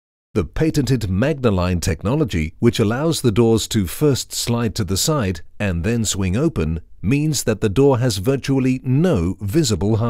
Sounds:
Speech

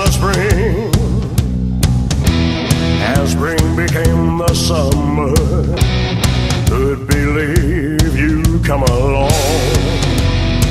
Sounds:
Music

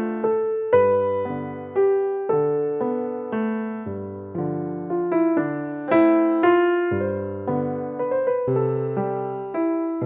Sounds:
Electric piano, Music, Music for children

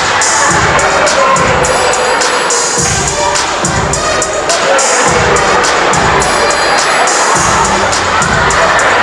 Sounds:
Music

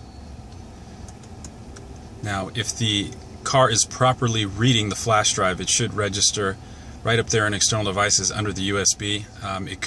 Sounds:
Speech

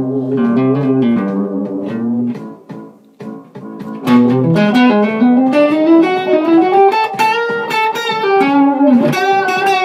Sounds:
Music, Guitar, Strum, Musical instrument, Acoustic guitar, Plucked string instrument

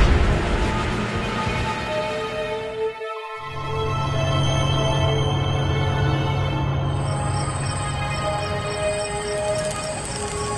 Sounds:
Scary music, Music

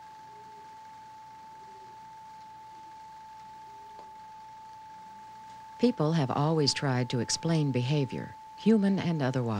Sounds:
Speech, Bird, dove

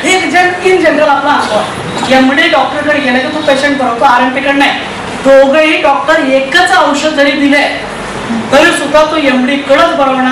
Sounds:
Speech, Male speech, monologue

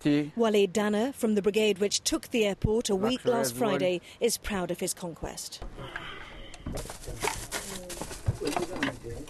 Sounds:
Speech

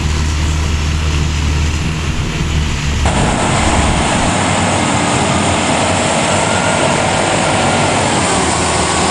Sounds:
Truck, Vehicle

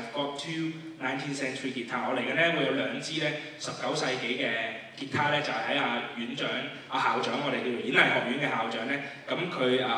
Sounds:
Guitar, Musical instrument, playing acoustic guitar, Acoustic guitar, Music

